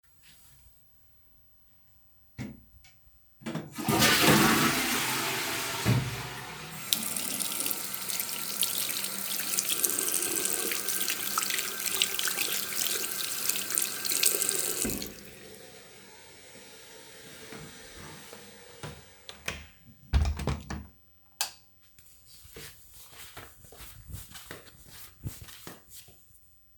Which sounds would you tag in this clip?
toilet flushing, running water, footsteps, door, light switch